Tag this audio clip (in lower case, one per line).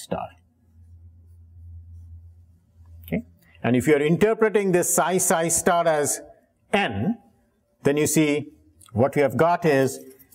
speech
inside a large room or hall